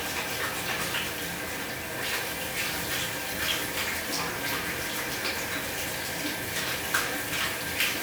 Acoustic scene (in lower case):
restroom